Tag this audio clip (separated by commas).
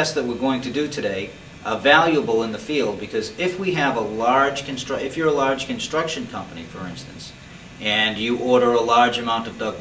Speech